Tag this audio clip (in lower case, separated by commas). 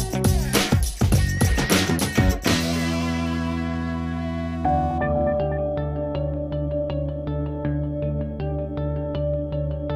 music